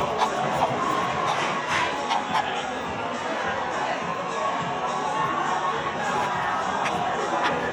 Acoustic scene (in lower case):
cafe